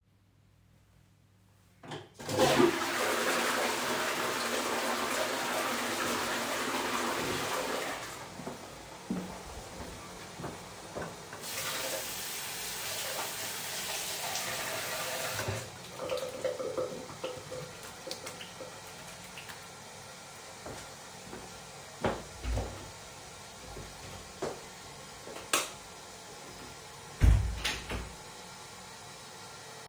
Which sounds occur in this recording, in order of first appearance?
toilet flushing, footsteps, running water, light switch, door